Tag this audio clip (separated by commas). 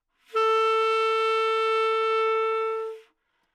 Music, Musical instrument, woodwind instrument